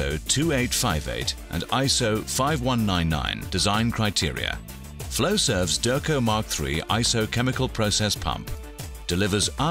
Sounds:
Music, Speech

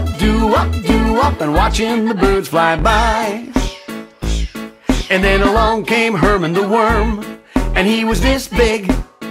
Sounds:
Music, Music for children

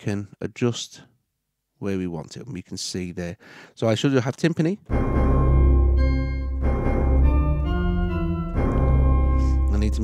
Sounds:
Speech, Music, inside a small room

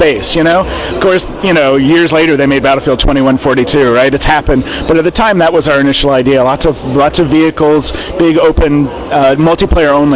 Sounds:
Speech

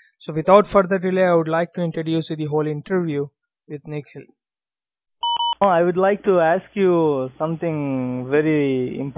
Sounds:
Speech

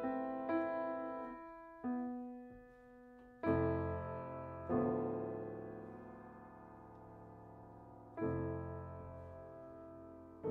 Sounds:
Musical instrument, Piano, Music, Keyboard (musical)

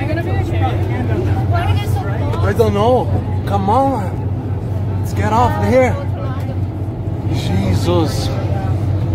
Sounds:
volcano explosion

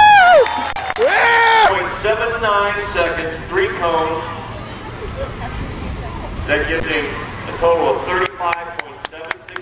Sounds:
Speech

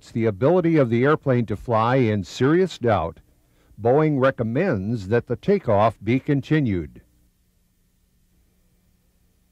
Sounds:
Speech

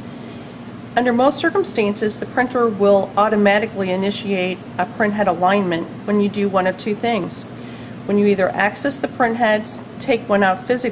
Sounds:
Speech

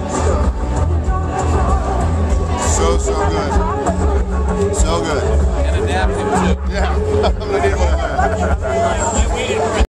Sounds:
Music, Speech

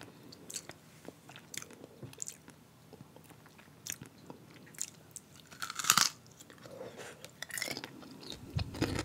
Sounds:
people eating

